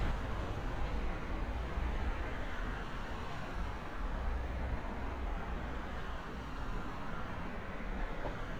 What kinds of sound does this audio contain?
medium-sounding engine